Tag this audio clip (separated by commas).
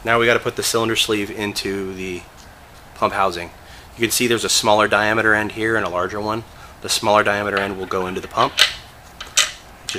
Speech